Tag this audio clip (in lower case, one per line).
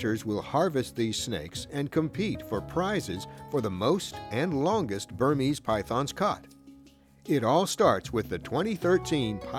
speech
music